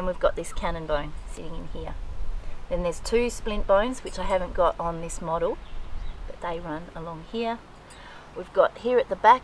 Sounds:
speech

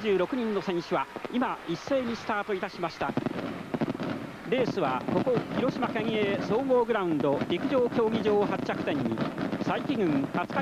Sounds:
run
speech

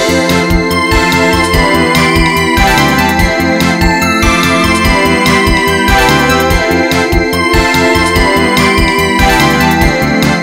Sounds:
music

